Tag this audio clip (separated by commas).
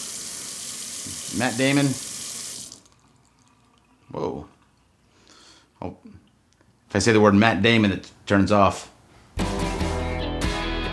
Water tap, Speech, Music